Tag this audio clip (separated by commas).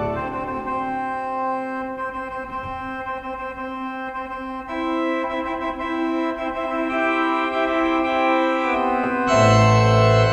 Organ, Piano